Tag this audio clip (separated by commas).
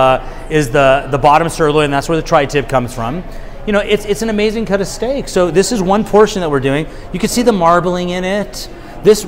Speech